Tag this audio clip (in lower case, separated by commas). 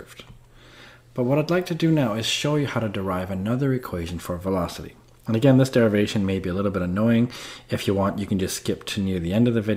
speech